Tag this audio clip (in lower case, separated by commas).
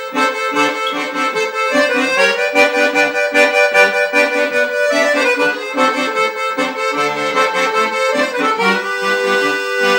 accordion, music, playing accordion